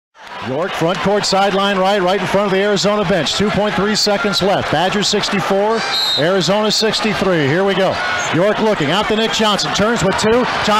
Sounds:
Speech

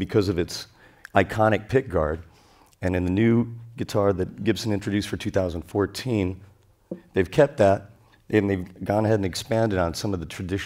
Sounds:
Speech

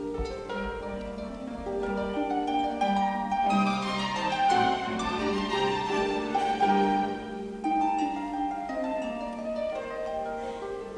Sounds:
playing harp

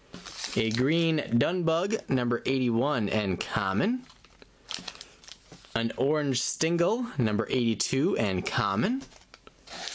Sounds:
inside a small room, Speech

